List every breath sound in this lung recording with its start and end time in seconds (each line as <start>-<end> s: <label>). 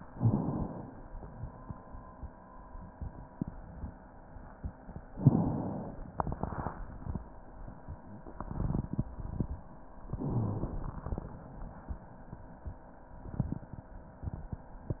0.08-0.91 s: inhalation
0.91-2.34 s: exhalation
5.11-6.08 s: inhalation
10.08-11.02 s: inhalation
10.15-10.68 s: wheeze
11.03-12.15 s: exhalation